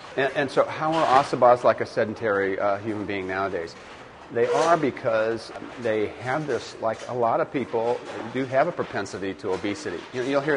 A man speaks loudly